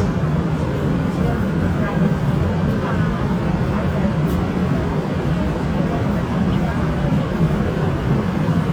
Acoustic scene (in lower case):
subway train